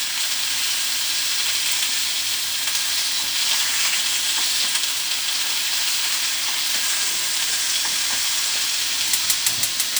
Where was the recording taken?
in a kitchen